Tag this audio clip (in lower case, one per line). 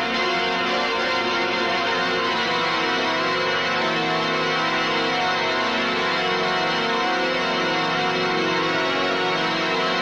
musical instrument
music